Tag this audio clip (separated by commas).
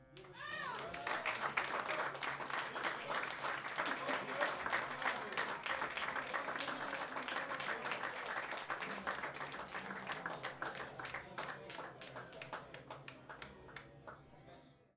Human group actions, Applause